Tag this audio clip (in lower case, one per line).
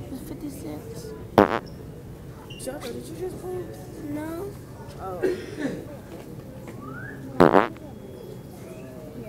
people farting